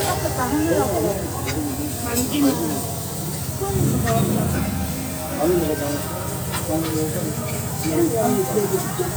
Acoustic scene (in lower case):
restaurant